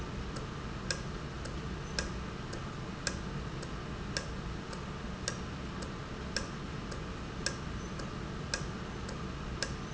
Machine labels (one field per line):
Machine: valve